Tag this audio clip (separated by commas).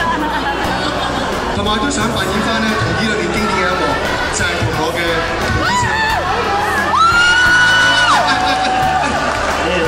Music, Singing, Speech, Crowd